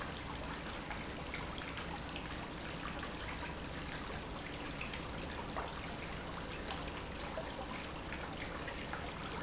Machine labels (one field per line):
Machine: pump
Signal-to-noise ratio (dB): 0 dB